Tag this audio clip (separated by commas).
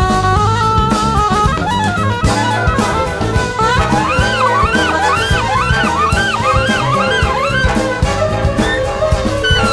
Violin, Bowed string instrument